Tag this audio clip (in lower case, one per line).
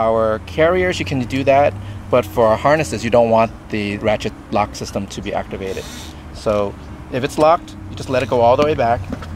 speech